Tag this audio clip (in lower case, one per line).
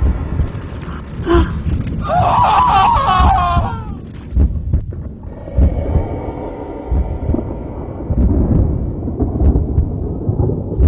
music
inside a large room or hall